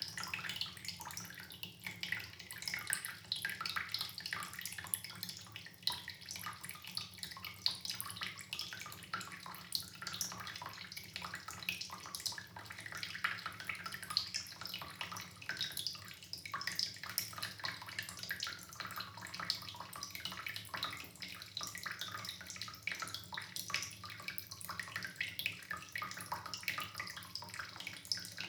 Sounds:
Liquid, Drip

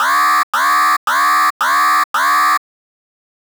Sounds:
Alarm

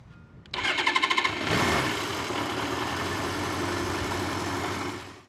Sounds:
Engine, Engine starting

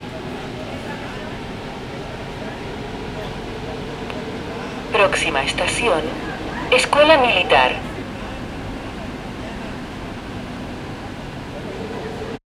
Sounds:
Rail transport, Vehicle, metro

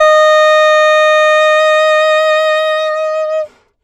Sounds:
Wind instrument, Music, Musical instrument

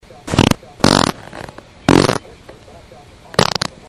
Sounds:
Fart

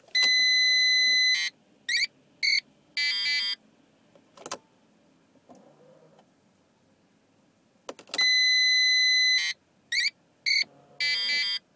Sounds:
Car, Vehicle, Motor vehicle (road)

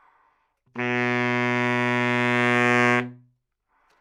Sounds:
Music, Musical instrument, woodwind instrument

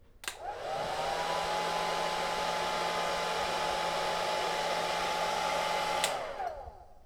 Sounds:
Domestic sounds

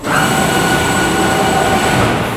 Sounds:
Mechanisms

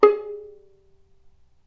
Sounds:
Musical instrument, Music, Bowed string instrument

